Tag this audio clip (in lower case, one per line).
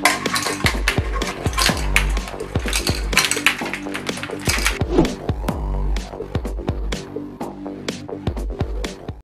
music
techno